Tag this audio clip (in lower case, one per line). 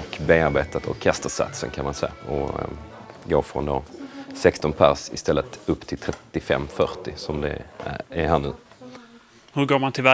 speech